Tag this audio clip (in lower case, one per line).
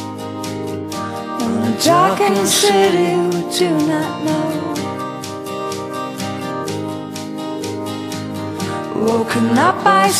music